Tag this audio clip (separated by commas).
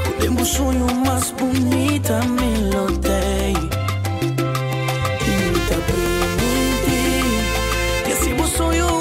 Music